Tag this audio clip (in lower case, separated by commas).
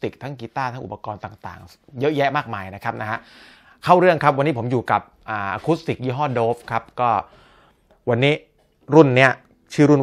speech